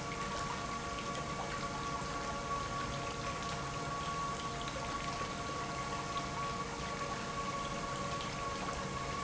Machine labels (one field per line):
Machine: pump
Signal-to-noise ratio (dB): -6 dB